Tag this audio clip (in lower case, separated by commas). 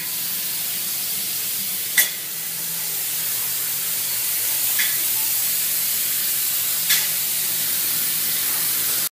spray